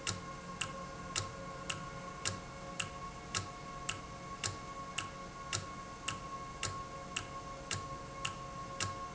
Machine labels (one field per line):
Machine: valve